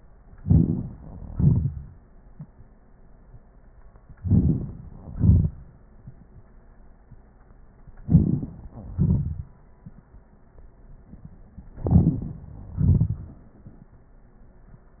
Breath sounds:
Inhalation: 0.40-0.88 s, 4.20-4.74 s, 8.03-8.53 s, 11.83-12.20 s
Exhalation: 1.32-1.72 s, 5.13-5.51 s, 8.94-9.44 s, 12.80-13.22 s

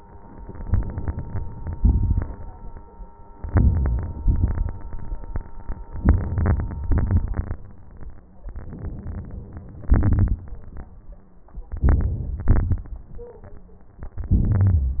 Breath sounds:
Inhalation: 0.63-1.74 s, 3.37-4.20 s, 6.02-6.88 s, 8.52-9.89 s, 11.79-12.51 s, 14.37-15.00 s
Exhalation: 1.77-2.43 s, 4.23-4.76 s, 6.89-7.57 s, 9.90-10.44 s, 12.52-13.08 s
Crackles: 0.63-1.74 s, 1.77-2.43 s, 3.37-4.20 s, 4.23-4.76 s, 6.03-6.80 s, 6.89-7.57 s, 9.90-10.44 s, 12.52-13.08 s

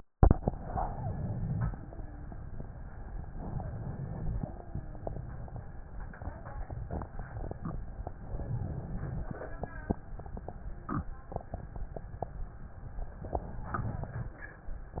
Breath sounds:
Inhalation: 0.46-1.75 s, 3.32-4.57 s, 8.20-9.45 s, 13.22-14.46 s

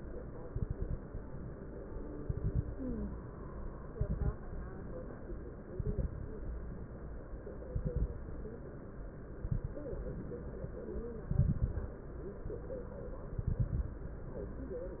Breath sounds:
Exhalation: 0.47-0.98 s, 2.20-2.71 s, 3.95-4.35 s, 5.76-6.15 s, 7.73-8.13 s, 9.40-9.80 s, 11.31-12.03 s, 13.36-14.08 s
Crackles: 0.47-0.98 s, 2.20-2.71 s, 3.95-4.35 s, 5.76-6.15 s, 7.73-8.13 s, 9.40-9.80 s, 11.31-12.03 s, 13.36-14.08 s

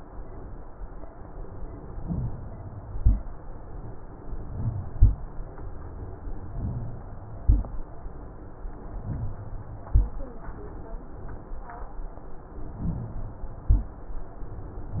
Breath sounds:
Inhalation: 1.96-2.94 s, 4.23-4.93 s, 6.57-7.42 s, 9.05-9.91 s, 12.81-13.66 s
Exhalation: 2.94-3.28 s, 4.93-5.22 s, 7.42-7.86 s, 9.92-10.36 s, 13.68-14.12 s
Rhonchi: 2.01-2.30 s, 2.94-3.28 s, 4.52-4.88 s, 4.93-5.22 s, 6.53-7.04 s, 7.44-7.84 s, 9.03-9.47 s, 9.92-10.32 s, 12.79-13.19 s, 13.68-14.12 s

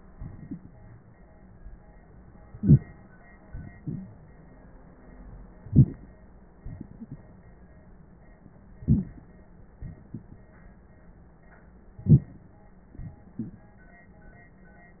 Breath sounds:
Inhalation: 2.50-3.06 s, 5.69-6.11 s, 8.90-9.32 s, 12.07-12.45 s
Exhalation: 3.49-4.35 s, 6.60-7.55 s, 9.79-10.47 s, 12.94-13.70 s

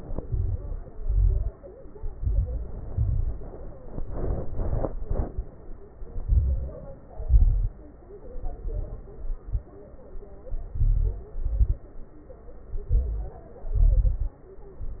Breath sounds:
Inhalation: 0.13-0.85 s, 1.98-2.81 s, 3.93-4.60 s, 6.20-6.86 s, 8.27-9.08 s, 10.51-11.36 s, 12.87-13.49 s
Exhalation: 0.84-1.55 s, 2.89-3.55 s, 4.69-5.36 s, 7.13-7.79 s, 9.20-9.69 s, 11.35-11.89 s, 13.68-14.44 s
Crackles: 0.10-0.81 s, 0.84-1.55 s, 1.98-2.81 s, 2.89-3.55 s, 3.93-4.60 s, 4.69-5.36 s, 6.20-6.86 s, 7.13-7.79 s, 8.27-9.08 s, 9.20-9.69 s, 10.51-11.27 s, 11.35-11.89 s, 12.87-13.49 s, 13.68-14.44 s

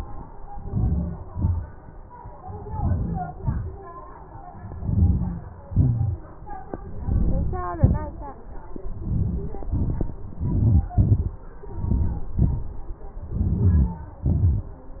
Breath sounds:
Inhalation: 0.72-1.25 s, 2.74-3.31 s, 4.78-5.46 s, 7.06-7.61 s, 9.04-9.56 s, 10.48-10.91 s, 11.87-12.33 s, 13.40-13.99 s
Exhalation: 1.35-1.71 s, 3.41-3.84 s, 5.76-6.17 s, 7.80-8.28 s, 9.68-10.16 s, 11.05-11.47 s, 12.41-12.91 s, 14.29-14.75 s

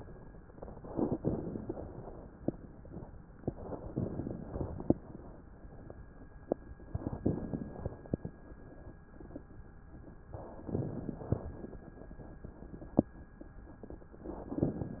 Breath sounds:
Inhalation: 0.87-1.73 s, 3.97-4.93 s, 7.27-8.24 s, 10.64-11.48 s

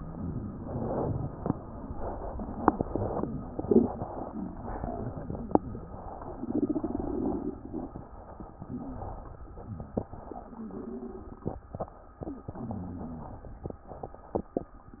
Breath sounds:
Exhalation: 0.00-1.29 s, 2.61-3.29 s

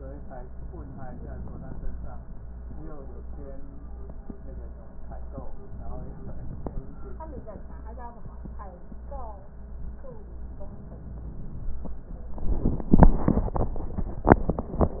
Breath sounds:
Inhalation: 0.73-2.00 s, 5.67-6.94 s

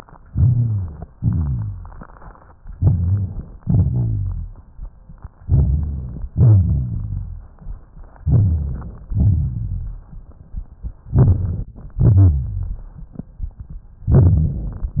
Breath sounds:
Inhalation: 0.27-1.03 s, 2.73-3.59 s, 5.43-6.24 s, 8.25-9.07 s, 11.15-11.72 s
Exhalation: 1.16-2.50 s, 3.61-4.77 s, 6.35-7.57 s, 9.14-10.14 s, 12.00-13.82 s
Rhonchi: 0.32-1.08 s, 1.18-2.04 s, 2.78-3.48 s, 3.64-4.62 s, 5.45-6.31 s, 6.33-7.50 s, 8.23-8.94 s, 9.07-10.10 s, 11.95-12.98 s
Crackles: 1.16-2.53 s, 11.14-11.72 s, 12.00-13.82 s

